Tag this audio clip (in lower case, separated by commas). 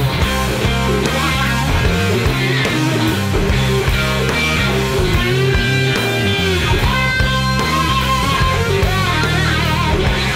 music, musical instrument, guitar, plucked string instrument